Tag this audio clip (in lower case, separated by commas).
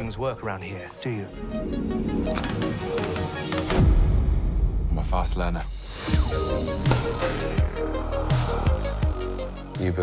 music, speech